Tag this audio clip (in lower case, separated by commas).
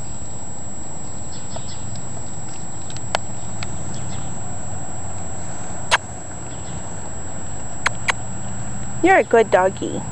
animal, speech